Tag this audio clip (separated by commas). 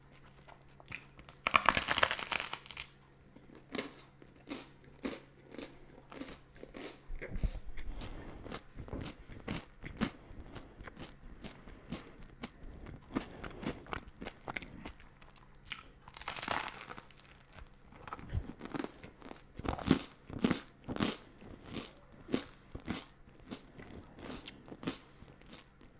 Chewing